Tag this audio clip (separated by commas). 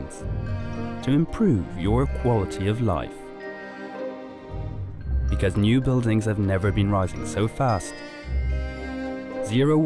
Speech, Music